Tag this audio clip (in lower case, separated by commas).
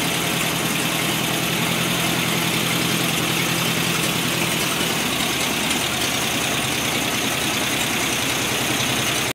heavy engine (low frequency)